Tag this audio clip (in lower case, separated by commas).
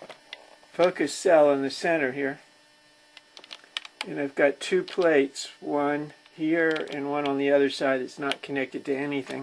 speech